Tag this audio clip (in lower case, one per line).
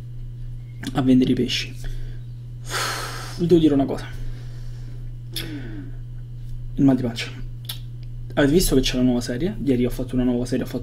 speech